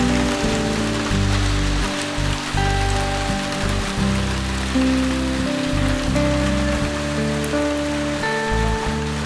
A guitar is playing while rain is hitting a surface